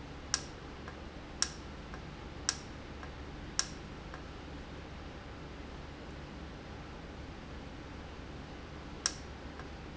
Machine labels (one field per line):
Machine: valve